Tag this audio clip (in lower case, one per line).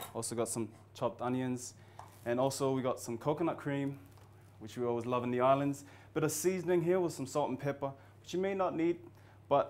speech